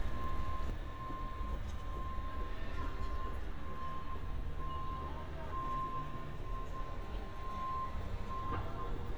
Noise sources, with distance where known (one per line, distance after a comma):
background noise